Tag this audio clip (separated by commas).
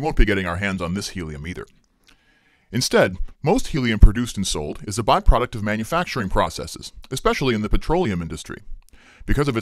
Speech